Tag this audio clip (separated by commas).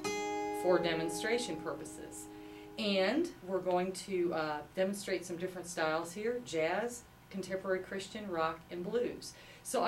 Music, Speech